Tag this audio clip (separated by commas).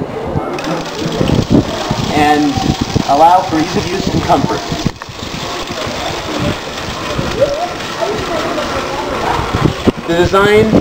Bicycle, Vehicle, Speech